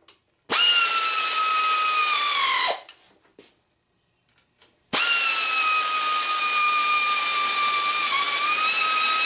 A drill whirring in a short burst, then a longer drill burst